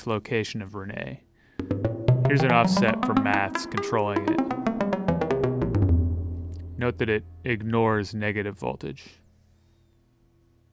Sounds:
Speech, Music

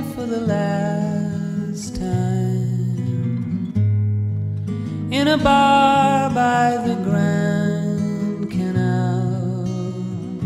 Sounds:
Music

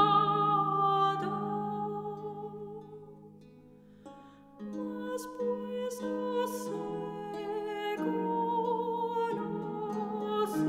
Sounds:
Musical instrument, Music

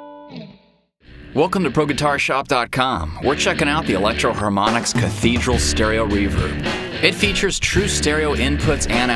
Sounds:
Speech, Distortion, Music

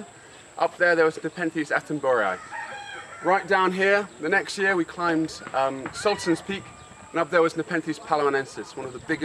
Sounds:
livestock

